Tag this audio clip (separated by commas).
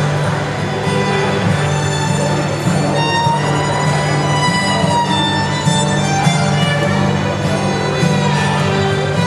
Music, Violin, Musical instrument